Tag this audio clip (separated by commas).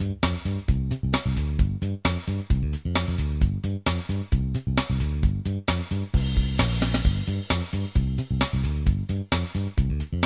Music